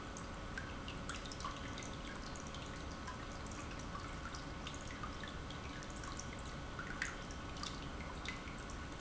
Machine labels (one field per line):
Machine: pump